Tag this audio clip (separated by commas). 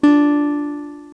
Acoustic guitar, Guitar, Music, Musical instrument, Plucked string instrument